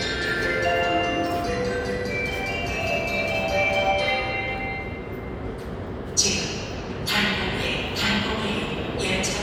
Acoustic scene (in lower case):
subway station